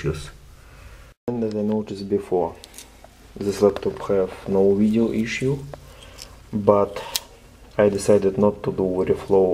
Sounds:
speech

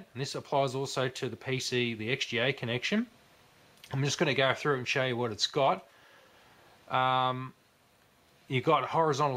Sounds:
speech

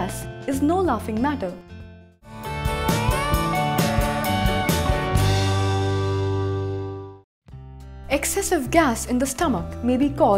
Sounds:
music, speech

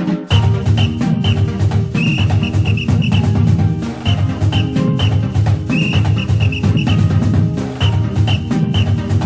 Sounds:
music, background music

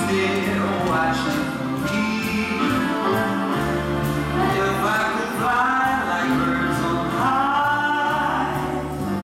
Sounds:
music

